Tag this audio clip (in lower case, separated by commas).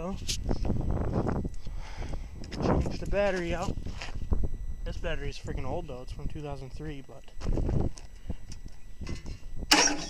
speech